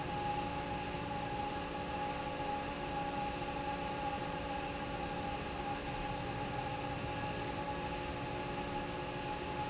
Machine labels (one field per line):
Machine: fan